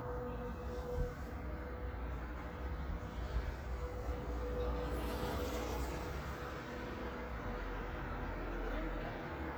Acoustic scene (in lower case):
residential area